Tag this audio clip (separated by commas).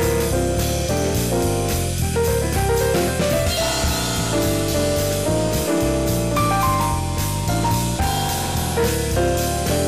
Music